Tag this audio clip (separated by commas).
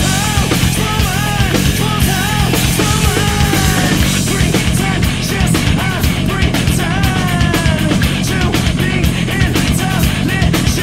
Music